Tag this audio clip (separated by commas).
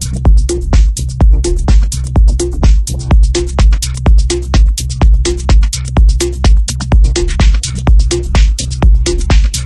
Music, Musical instrument